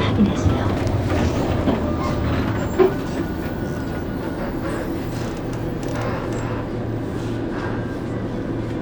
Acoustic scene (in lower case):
bus